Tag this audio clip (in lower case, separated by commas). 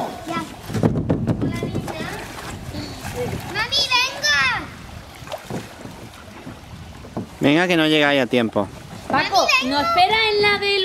rowboat, speech, boat, vehicle